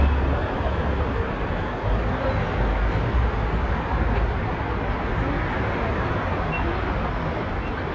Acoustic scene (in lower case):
residential area